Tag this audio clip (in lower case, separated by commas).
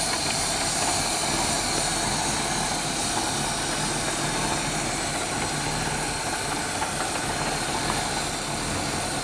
idling, vehicle